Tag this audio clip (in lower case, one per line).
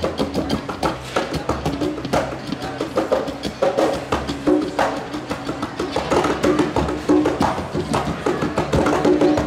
drum
musical instrument
music